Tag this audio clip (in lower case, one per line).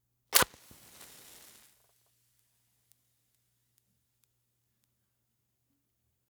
fire